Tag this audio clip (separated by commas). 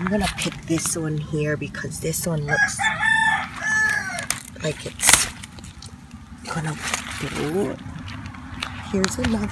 Speech